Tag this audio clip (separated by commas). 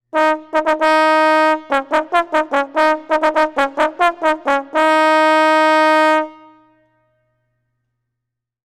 Musical instrument, Music, Brass instrument